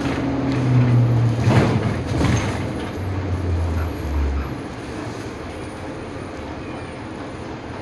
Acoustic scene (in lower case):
bus